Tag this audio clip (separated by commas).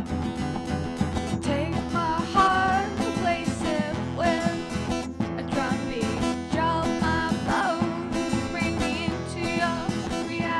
Music